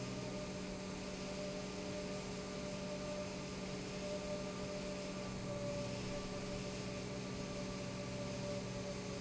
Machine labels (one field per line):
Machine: pump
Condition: normal